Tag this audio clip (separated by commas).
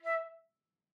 woodwind instrument, Musical instrument, Music